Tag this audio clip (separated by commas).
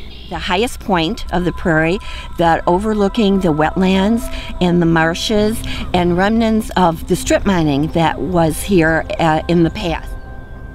Speech